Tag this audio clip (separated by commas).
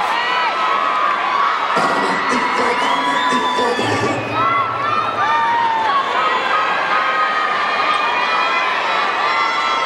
Music, Bellow